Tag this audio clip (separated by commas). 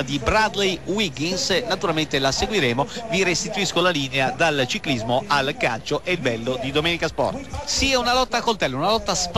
Speech